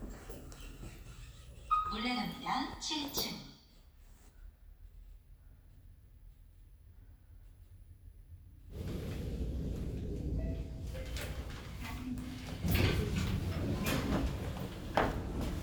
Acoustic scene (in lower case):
elevator